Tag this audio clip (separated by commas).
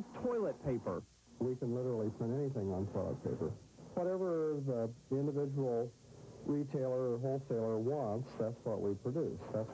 Speech